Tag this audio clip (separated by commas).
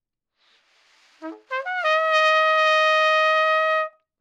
Musical instrument, Trumpet, Music, Brass instrument